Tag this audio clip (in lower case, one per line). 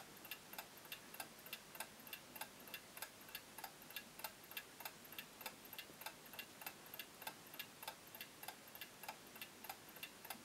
tick-tock